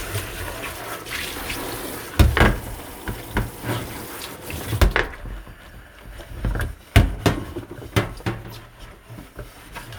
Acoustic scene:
kitchen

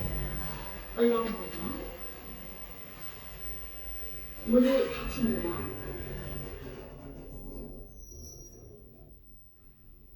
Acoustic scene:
elevator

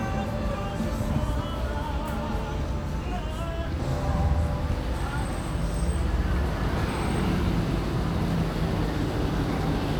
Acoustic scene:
street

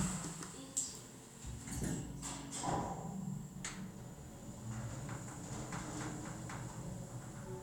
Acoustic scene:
elevator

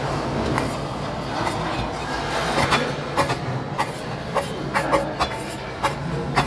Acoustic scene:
restaurant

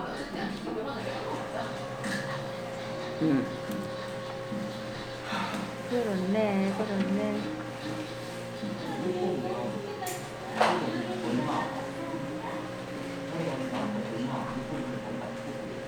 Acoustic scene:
crowded indoor space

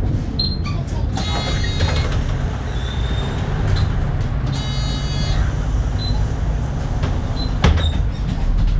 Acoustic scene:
bus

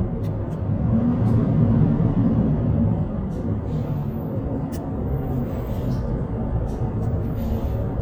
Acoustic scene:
bus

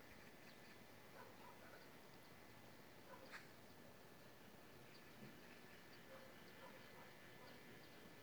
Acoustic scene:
park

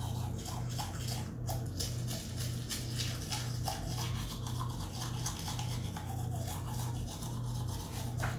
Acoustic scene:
restroom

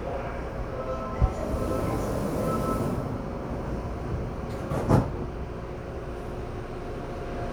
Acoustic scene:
subway train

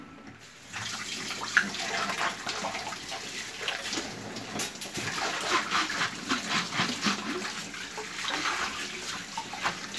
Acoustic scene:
kitchen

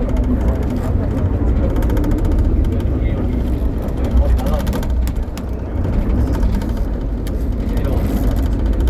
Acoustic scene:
bus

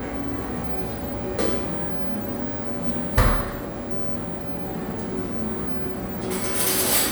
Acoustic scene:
cafe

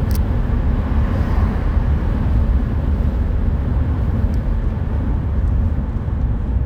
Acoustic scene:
car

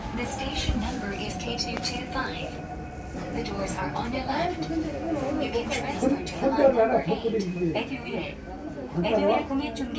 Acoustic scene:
subway train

